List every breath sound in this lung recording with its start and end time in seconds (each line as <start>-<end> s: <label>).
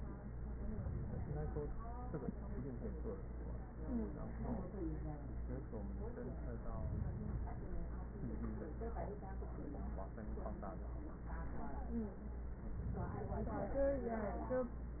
No breath sounds were labelled in this clip.